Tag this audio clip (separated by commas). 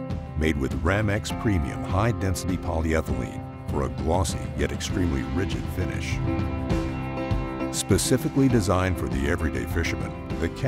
Speech, Music